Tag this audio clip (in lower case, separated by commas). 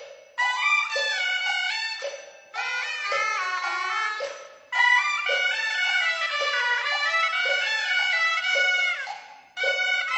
music, wood block